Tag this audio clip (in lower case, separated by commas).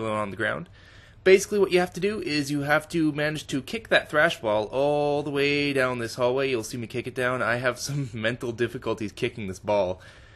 speech